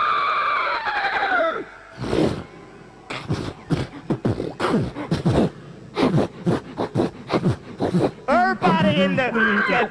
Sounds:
inside a large room or hall, beatboxing

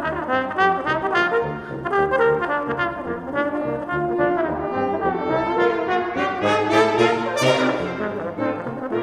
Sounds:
playing trombone, music, brass instrument, trombone

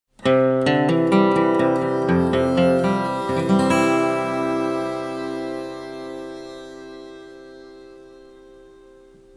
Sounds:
strum

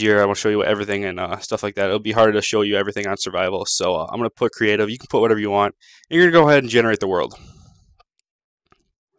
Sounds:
speech, inside a small room

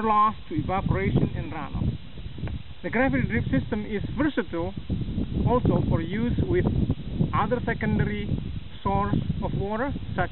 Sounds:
speech

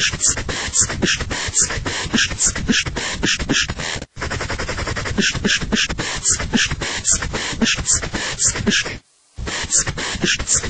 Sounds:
beat boxing

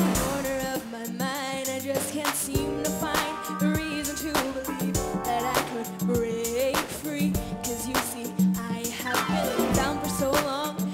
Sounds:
music

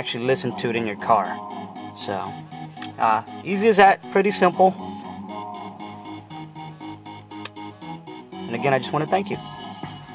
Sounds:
speech, music

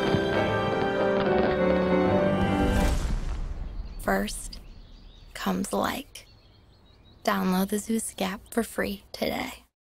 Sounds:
speech, music

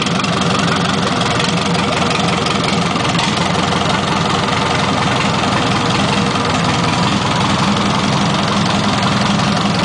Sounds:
idling, engine

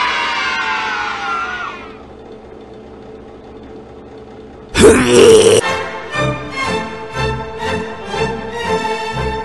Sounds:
inside a large room or hall, music

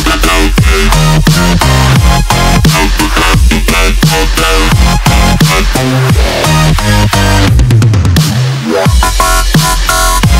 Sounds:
dubstep, music

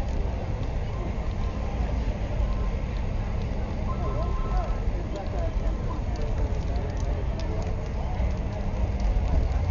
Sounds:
speech

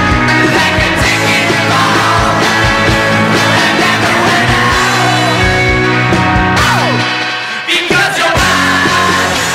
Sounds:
music

